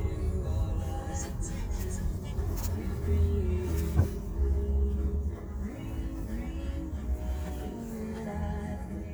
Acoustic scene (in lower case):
car